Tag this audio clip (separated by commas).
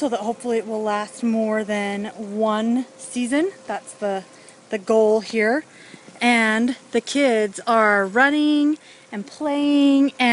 Speech